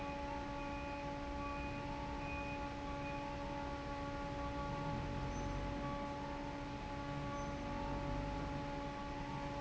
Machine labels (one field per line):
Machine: fan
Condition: normal